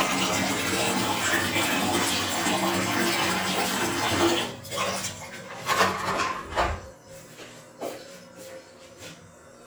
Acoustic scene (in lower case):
restroom